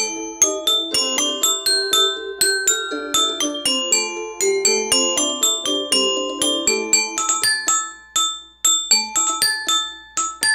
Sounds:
xylophone

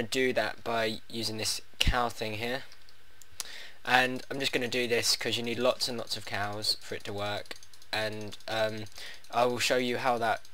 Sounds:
Speech

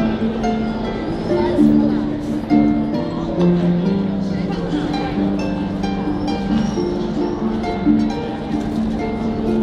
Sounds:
Music, Speech

